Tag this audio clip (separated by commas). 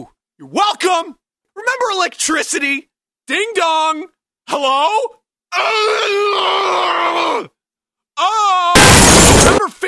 Speech